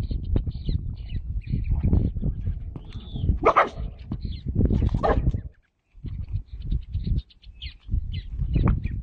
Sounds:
donkey

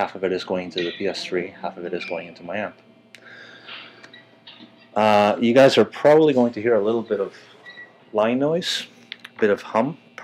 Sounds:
speech

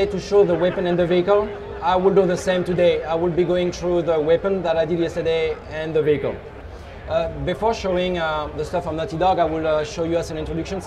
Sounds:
speech

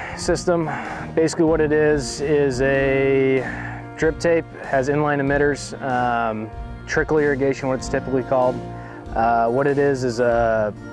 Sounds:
speech
music

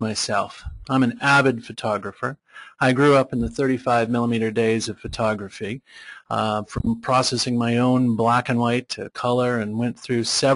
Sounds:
speech

